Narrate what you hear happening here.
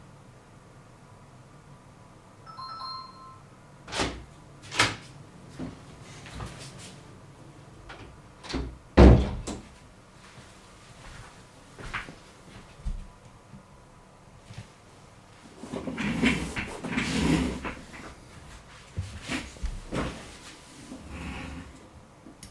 I rang the doorbell, opened and closed the door, then entered. I walked to the chair and sat down.